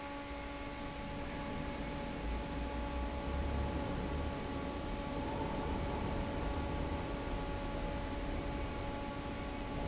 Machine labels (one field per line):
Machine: fan